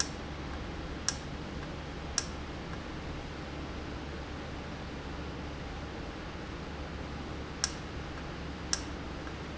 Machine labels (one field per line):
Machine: valve